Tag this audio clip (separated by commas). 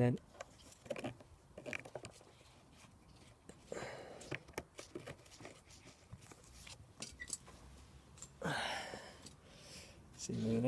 Speech